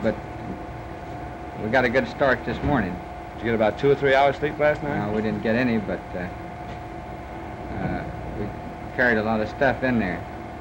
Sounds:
speech

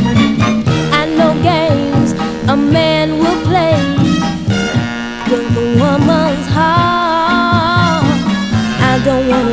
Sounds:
music

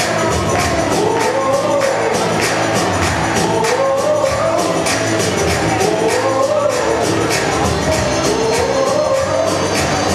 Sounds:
music

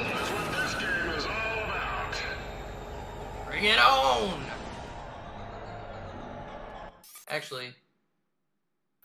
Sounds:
speech

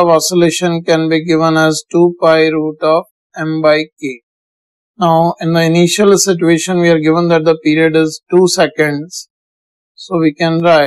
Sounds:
speech

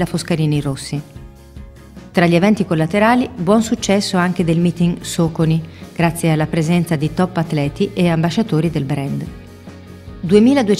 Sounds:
speech
music

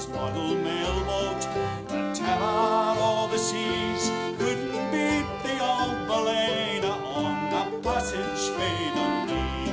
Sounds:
banjo
music

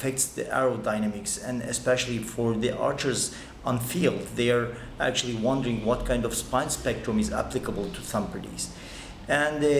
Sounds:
speech

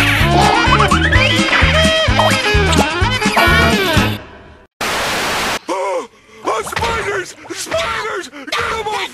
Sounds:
speech
music

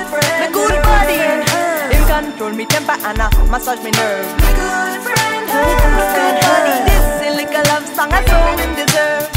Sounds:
reggae

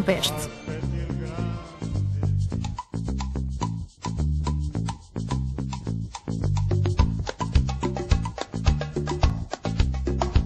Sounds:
speech
music

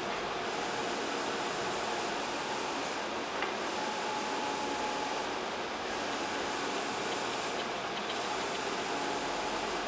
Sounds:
printer printing

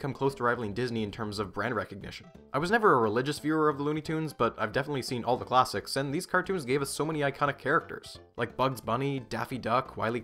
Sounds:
music
speech

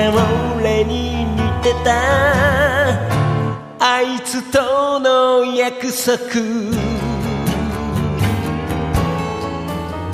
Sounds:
music

